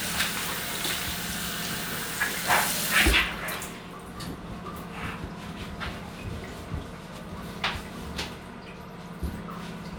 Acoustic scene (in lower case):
restroom